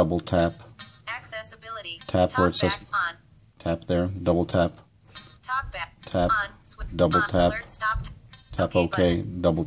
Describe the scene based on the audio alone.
A man speaks followed by dings and a robotic woman speaking